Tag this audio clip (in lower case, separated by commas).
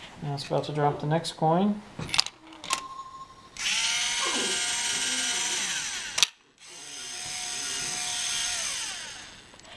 speech